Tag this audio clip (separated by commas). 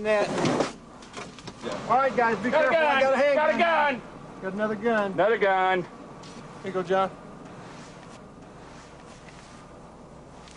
Speech